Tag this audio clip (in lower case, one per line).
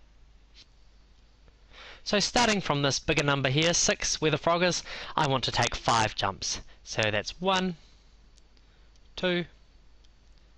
speech